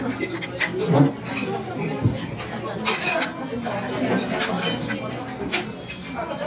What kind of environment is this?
restaurant